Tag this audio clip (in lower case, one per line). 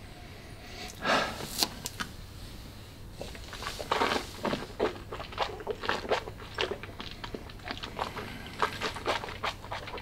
inside a small room